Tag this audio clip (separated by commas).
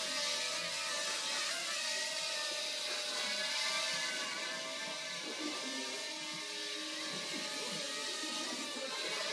Music